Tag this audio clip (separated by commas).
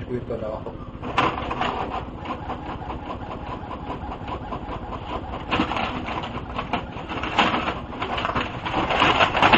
Printer, Speech